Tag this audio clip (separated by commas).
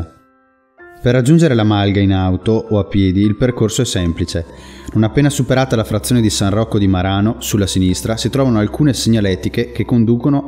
Speech, Music